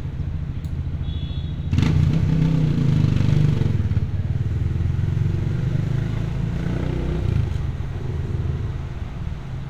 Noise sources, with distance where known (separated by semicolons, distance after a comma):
medium-sounding engine, near; car horn, far